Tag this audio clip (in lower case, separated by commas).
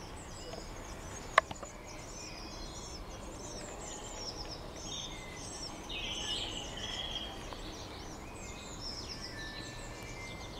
bird, environmental noise